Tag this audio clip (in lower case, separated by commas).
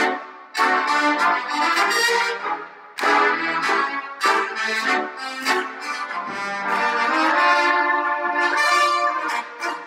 musical instrument, trombone, music, brass instrument, trumpet